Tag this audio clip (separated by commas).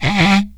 Wood